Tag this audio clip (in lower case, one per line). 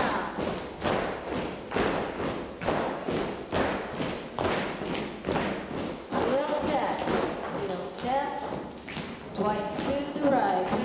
speech